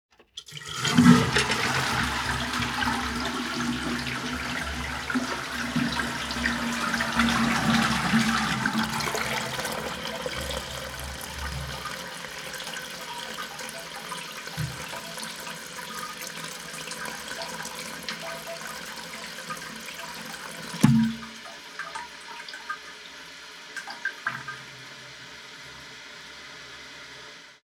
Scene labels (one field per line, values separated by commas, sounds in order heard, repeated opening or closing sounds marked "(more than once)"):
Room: bathroom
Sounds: toilet flushing, door